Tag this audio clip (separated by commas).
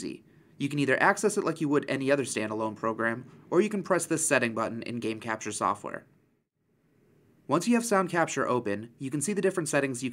Speech